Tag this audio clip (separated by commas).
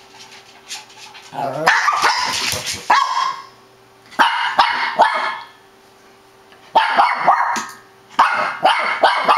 Animal, Bark, pets, Dog, dog barking